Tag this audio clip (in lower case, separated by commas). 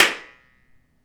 clapping, hands